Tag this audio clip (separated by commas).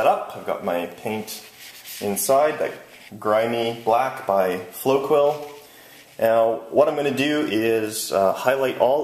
Speech, inside a small room